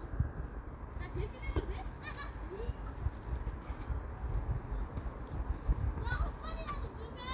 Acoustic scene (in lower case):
park